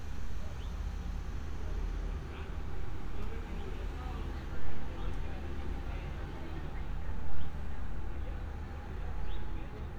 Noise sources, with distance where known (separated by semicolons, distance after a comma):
person or small group talking, far